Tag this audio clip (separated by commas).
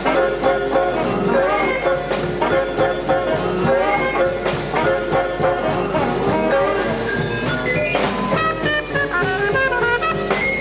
Music, Orchestra, Musical instrument, Jazz